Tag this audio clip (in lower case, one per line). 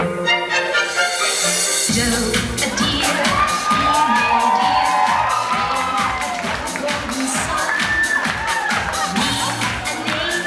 music
exciting music